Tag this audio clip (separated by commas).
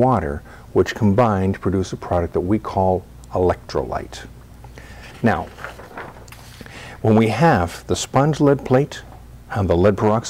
Speech